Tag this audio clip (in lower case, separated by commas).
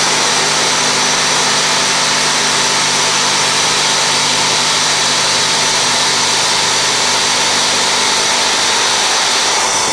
tools, power tool